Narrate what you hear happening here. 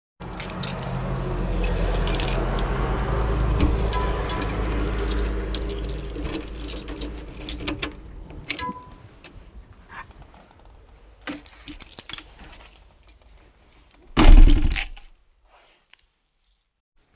I walked to my front door unlocked it to get into my flat and then I closed the door behind me